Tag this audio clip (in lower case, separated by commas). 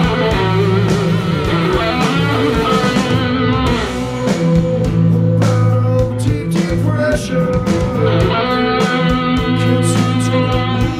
electric guitar, guitar, plucked string instrument, music, musical instrument, playing electric guitar